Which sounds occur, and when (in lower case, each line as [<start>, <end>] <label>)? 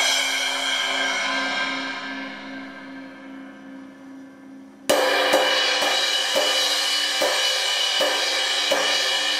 [0.00, 9.35] music